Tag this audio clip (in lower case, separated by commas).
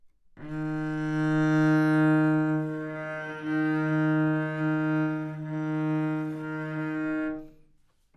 music, musical instrument, bowed string instrument